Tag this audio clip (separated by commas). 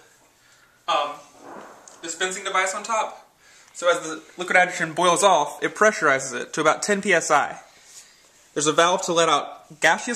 Speech